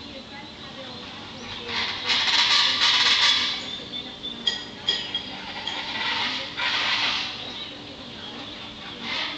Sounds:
bird squawking

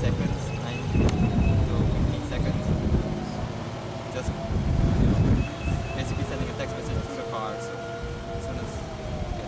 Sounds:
vehicle, car, speech, revving, engine

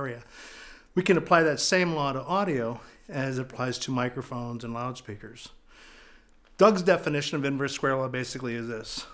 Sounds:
speech

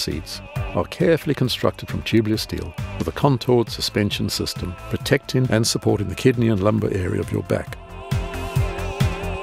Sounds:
music, speech

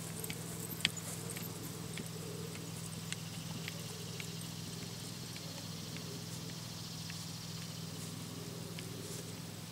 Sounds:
horse, animal, clip-clop

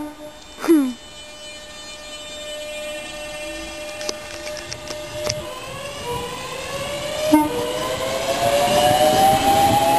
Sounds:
train, train wagon, vehicle, train whistle, rail transport

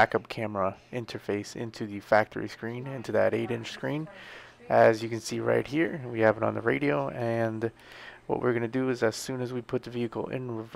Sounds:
speech

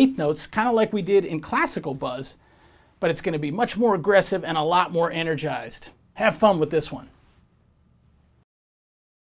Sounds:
speech

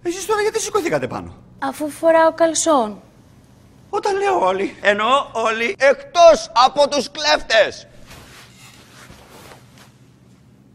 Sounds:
speech

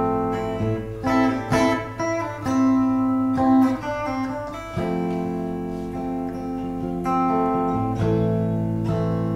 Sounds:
plucked string instrument, guitar, musical instrument, music

